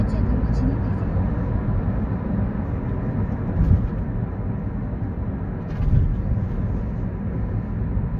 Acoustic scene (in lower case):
car